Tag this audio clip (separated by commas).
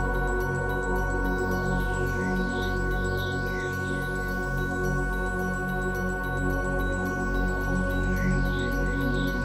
Music